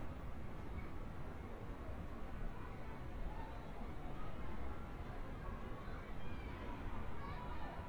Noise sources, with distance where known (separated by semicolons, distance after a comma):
person or small group shouting, far